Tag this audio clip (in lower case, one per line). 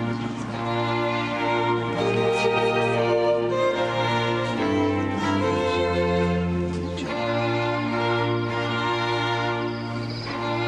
orchestra